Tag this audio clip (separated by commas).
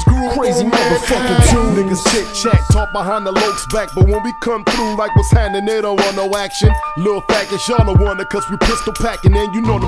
Music, Hip hop music, Rapping